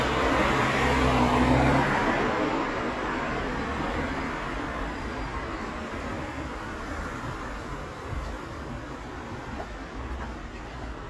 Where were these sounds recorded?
on a street